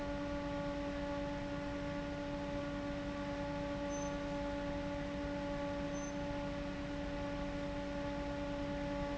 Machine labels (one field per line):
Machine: fan